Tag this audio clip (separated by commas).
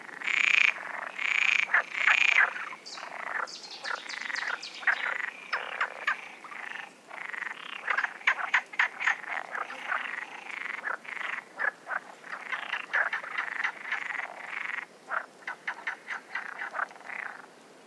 Wild animals, Frog, Animal